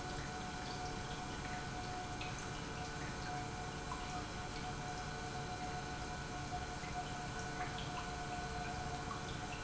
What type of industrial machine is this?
pump